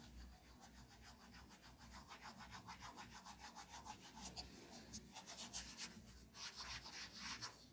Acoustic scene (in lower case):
restroom